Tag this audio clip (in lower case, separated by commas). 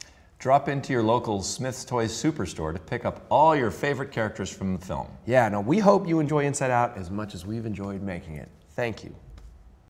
speech